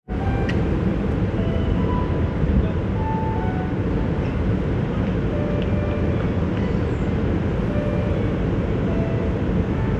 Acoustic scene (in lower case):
park